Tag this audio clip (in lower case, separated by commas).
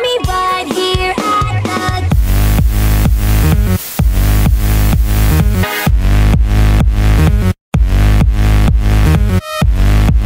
electronic dance music, music